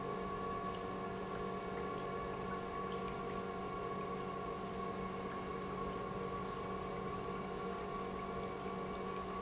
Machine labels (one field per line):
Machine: pump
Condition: normal